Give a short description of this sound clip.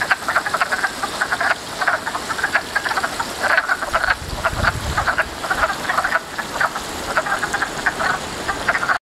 Water is splashing and many frogs croak vigorously